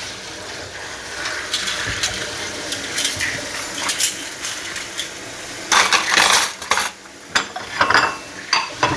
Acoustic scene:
kitchen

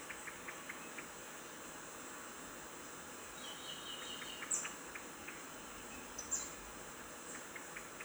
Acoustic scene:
park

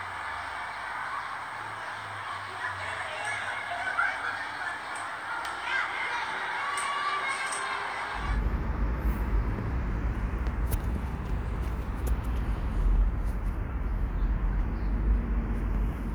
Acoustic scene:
residential area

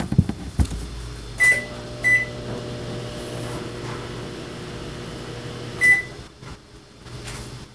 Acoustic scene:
kitchen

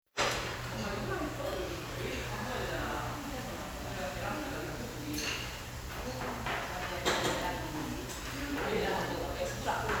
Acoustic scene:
restaurant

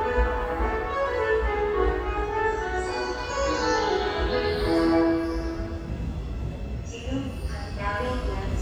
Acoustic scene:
subway station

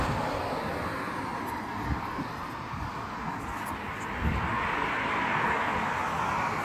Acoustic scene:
street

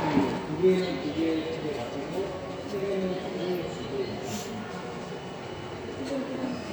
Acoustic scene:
subway station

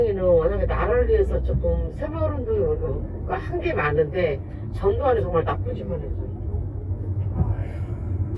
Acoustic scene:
car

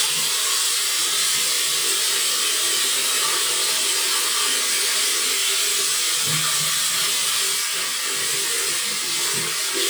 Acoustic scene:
restroom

